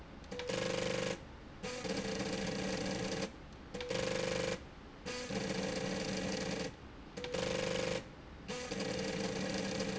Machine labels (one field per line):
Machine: slide rail